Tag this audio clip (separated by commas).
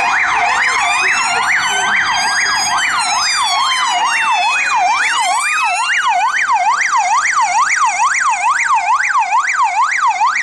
fire truck siren